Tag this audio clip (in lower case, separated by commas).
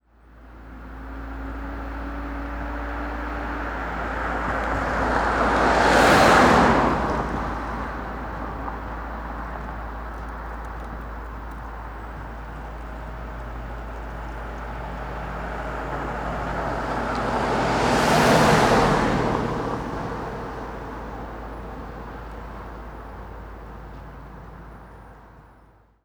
car passing by, vehicle, car, motor vehicle (road)